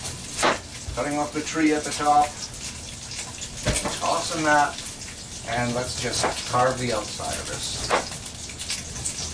A man talking as metal clacks against a plastic followed by thumping on a soft surface while water flows and splashes on a surface